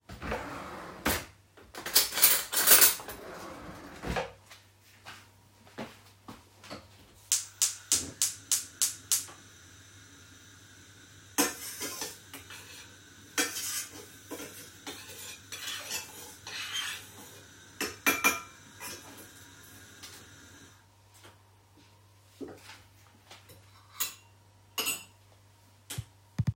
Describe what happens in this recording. I flicked the light switch on. I then turned on the gas stove and started stirring food in a frying pan with a metal spatula.